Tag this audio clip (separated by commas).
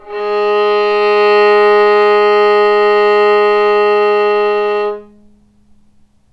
Music, Bowed string instrument, Musical instrument